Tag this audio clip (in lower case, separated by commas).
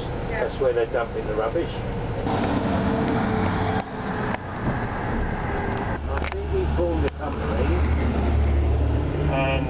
vehicle, outside, rural or natural, speech